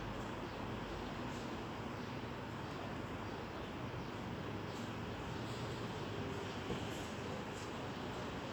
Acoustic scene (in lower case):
residential area